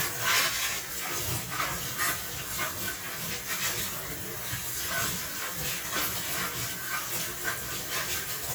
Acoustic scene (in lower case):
kitchen